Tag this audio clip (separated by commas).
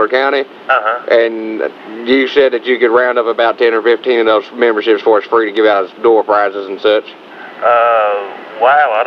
Speech